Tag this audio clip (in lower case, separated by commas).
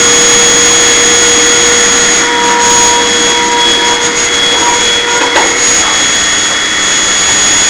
domestic sounds